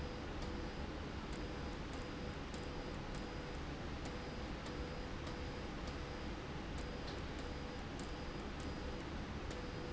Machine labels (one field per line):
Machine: slide rail